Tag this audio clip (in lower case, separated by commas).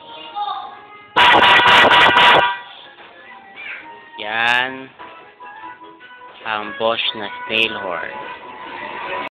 music, speech, car horn